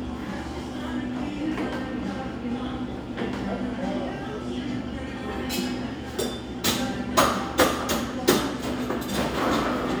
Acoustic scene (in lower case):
cafe